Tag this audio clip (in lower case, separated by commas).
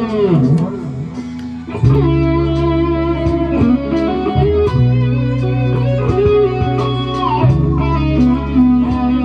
electric guitar, music, guitar, acoustic guitar, musical instrument